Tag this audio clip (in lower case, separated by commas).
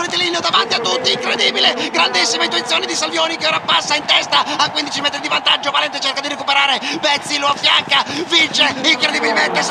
speech, outside, urban or man-made